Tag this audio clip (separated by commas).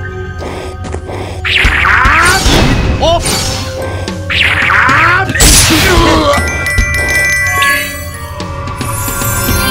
Music